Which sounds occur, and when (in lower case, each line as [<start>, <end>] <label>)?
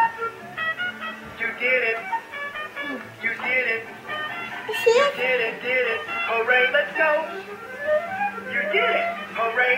[0.00, 1.14] music
[0.00, 9.75] mechanisms
[1.34, 2.20] male singing
[1.99, 3.04] music
[2.80, 3.03] human voice
[3.17, 3.93] male singing
[4.02, 9.75] music
[4.67, 5.12] giggle
[4.85, 5.98] male singing
[6.26, 7.22] male singing
[7.28, 7.59] surface contact
[8.54, 9.19] male singing
[9.36, 9.75] male singing